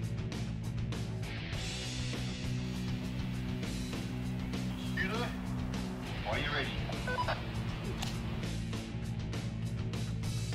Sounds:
Music, Speech

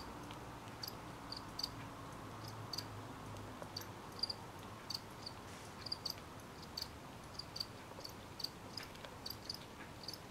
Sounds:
cricket chirping

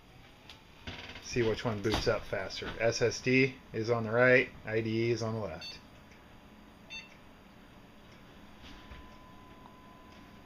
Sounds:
Speech, inside a small room

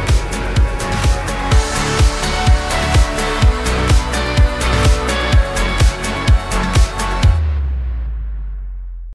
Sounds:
Ringtone, Music

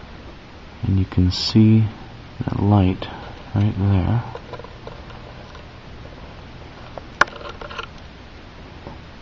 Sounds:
Speech

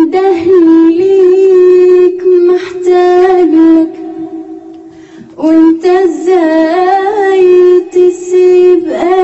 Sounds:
Female singing

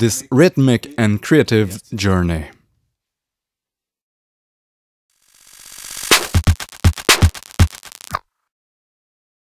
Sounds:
Speech, Synthesizer, Music, Musical instrument

